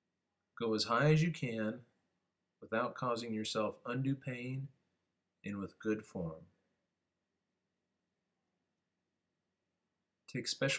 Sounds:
speech

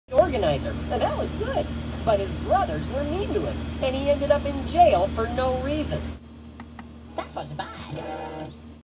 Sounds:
speech

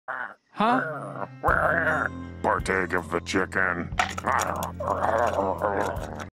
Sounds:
speech

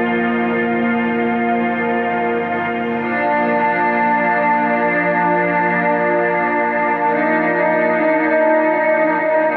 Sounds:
ambient music
guitar
music

